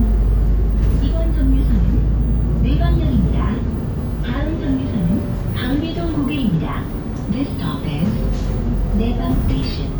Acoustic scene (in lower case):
bus